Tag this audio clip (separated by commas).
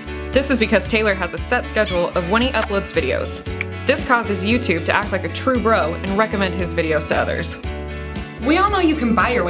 Music, Speech